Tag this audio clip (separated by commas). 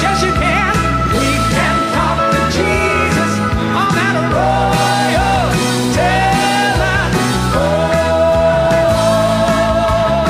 Music, Singing